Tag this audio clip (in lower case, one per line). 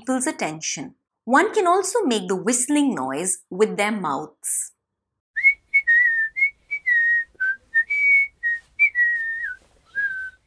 people whistling